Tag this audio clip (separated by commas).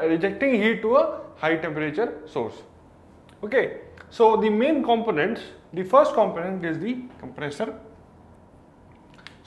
Speech